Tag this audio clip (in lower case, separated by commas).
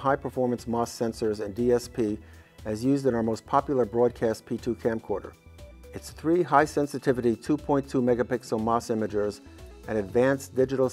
music, speech